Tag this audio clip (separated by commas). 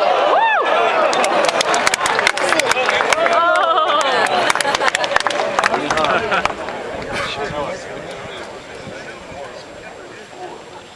Speech